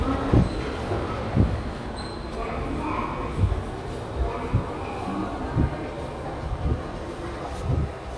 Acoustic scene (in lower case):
subway station